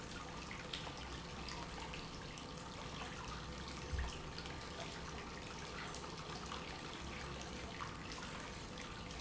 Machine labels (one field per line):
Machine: pump